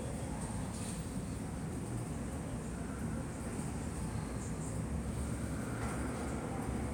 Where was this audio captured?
in a subway station